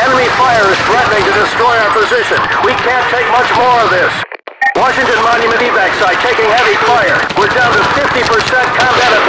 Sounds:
police radio chatter

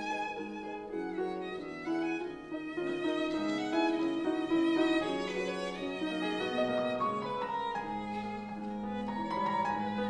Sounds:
Music, Violin, Musical instrument

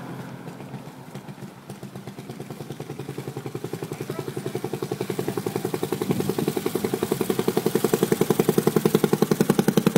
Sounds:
Motorboat, Speech, Boat, Vehicle, outside, urban or man-made

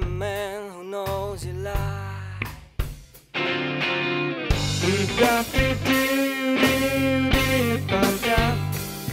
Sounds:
Music, clink

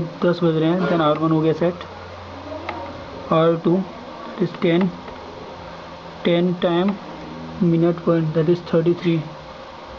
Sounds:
Speech

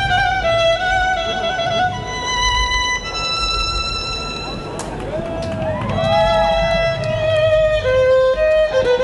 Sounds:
Musical instrument, Violin, Music

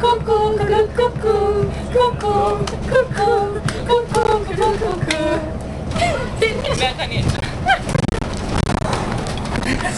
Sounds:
Speech

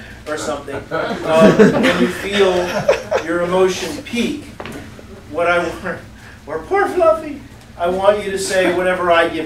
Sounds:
Speech

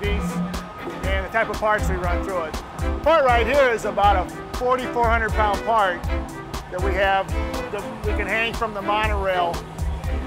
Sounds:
Music, Speech

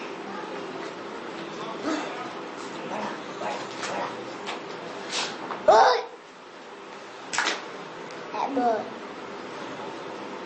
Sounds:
kid speaking, Speech

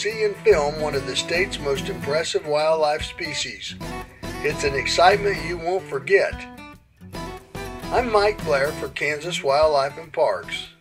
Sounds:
otter growling

